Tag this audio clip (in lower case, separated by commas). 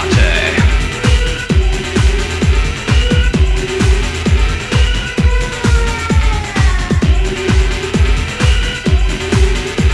music